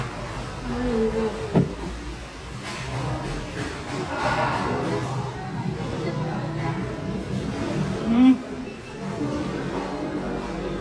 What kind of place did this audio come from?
cafe